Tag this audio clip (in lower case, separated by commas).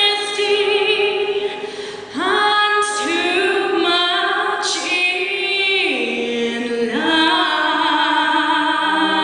music, female singing